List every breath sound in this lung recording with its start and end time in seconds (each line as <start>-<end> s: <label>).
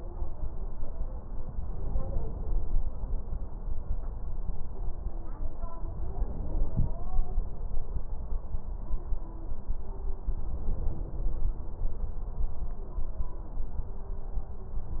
1.67-2.82 s: inhalation
6.05-7.20 s: inhalation
10.39-11.55 s: inhalation